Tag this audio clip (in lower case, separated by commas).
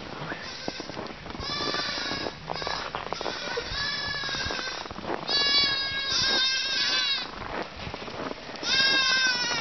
animal, sheep